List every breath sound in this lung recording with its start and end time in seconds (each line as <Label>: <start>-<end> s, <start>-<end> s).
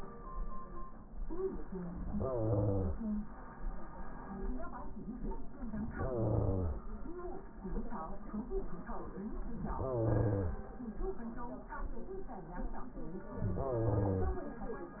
Inhalation: 2.04-3.24 s, 5.90-6.85 s, 9.50-10.71 s, 13.35-14.55 s